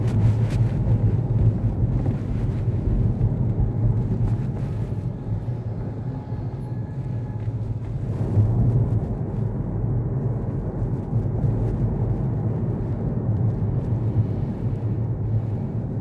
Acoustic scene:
car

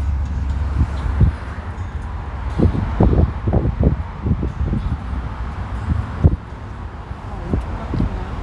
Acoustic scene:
car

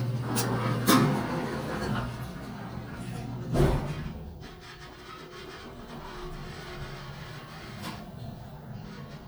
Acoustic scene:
elevator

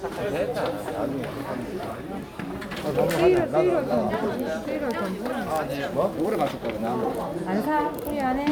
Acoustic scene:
crowded indoor space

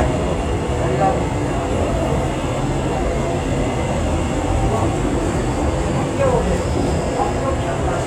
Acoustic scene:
subway train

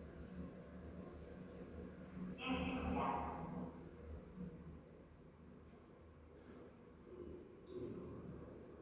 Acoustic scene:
elevator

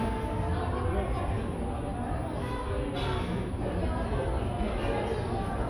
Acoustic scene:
cafe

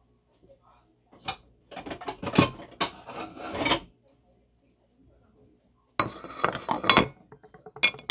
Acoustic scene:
kitchen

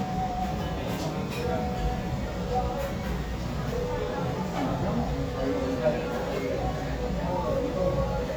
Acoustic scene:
restaurant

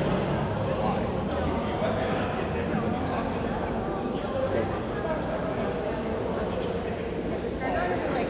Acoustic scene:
crowded indoor space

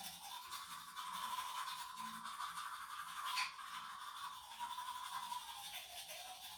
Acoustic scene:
restroom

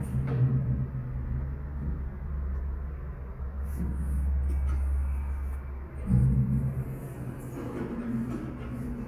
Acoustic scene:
elevator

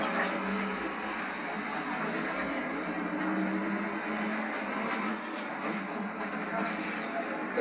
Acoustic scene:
bus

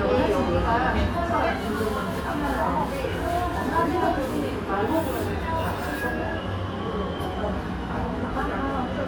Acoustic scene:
restaurant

